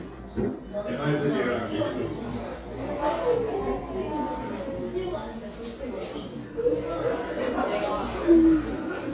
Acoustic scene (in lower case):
cafe